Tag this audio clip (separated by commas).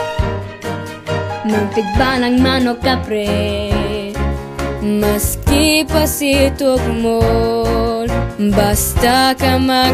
Music, outside, rural or natural